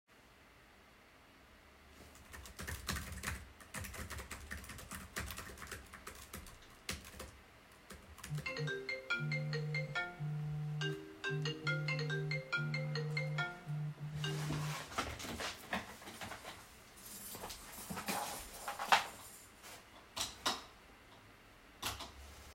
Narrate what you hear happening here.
As I was typing on my laptop, I get a phone call. I mute the call and get up to turn on the light